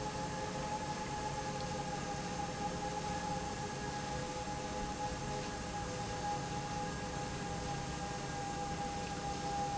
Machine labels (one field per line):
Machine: pump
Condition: normal